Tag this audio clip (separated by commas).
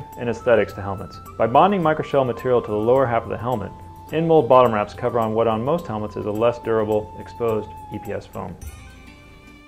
Speech, Music